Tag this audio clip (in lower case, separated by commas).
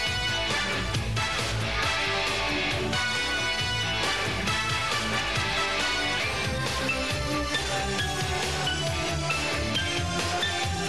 music